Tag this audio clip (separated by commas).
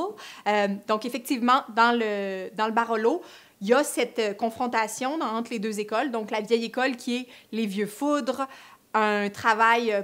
Speech